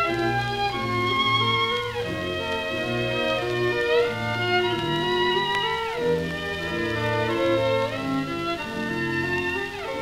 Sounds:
music, fiddle, musical instrument

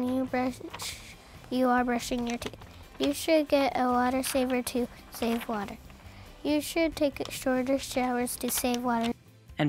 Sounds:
speech, music

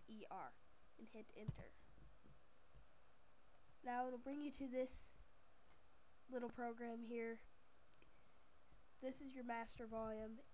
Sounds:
speech

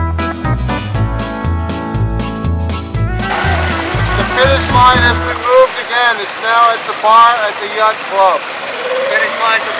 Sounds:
water vehicle

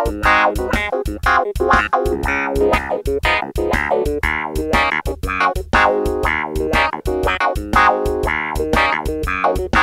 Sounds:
music, synthesizer

